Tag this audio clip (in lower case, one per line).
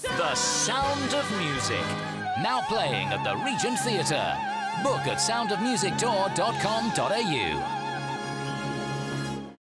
speech
exciting music
music